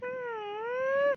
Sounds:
Human voice

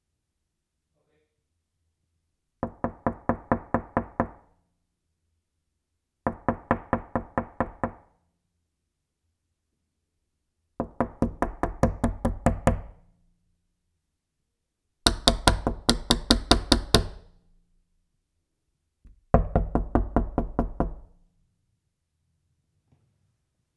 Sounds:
Domestic sounds, Door, Knock

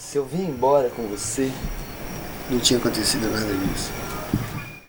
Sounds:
man speaking, Speech, Human voice

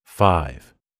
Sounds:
Speech, Human voice

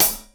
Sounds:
Cymbal, Hi-hat, Music, Musical instrument, Percussion

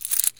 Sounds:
Coin (dropping), Domestic sounds

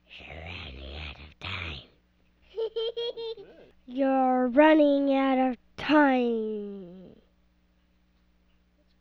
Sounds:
kid speaking, Human voice, Speech

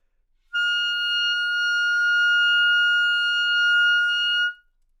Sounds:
Music, Wind instrument, Musical instrument

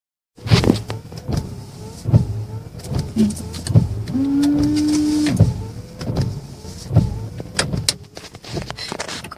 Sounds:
Car, Motor vehicle (road), Vehicle

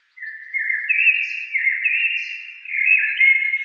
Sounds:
Wild animals, Bird, Animal

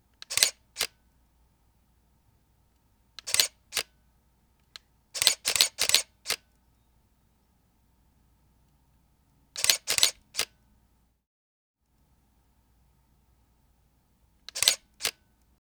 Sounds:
Camera, Mechanisms

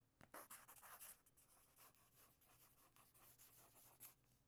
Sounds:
home sounds, Writing

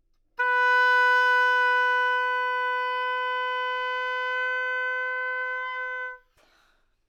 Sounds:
Wind instrument, Music, Musical instrument

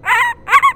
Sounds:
Wild animals, Animal, Bird vocalization, Bird

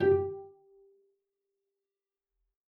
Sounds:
Musical instrument, Music, Bowed string instrument

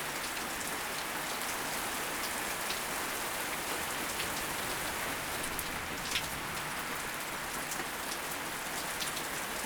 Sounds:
Rain, Water

